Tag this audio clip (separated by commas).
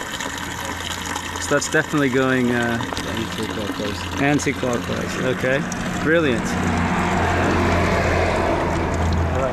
Water